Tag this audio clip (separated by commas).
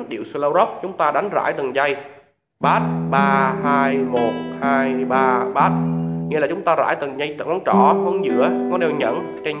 Acoustic guitar, Music, Plucked string instrument, Speech, Musical instrument, Guitar